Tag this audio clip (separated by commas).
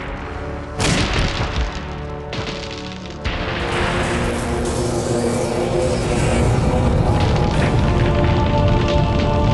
Music, Boom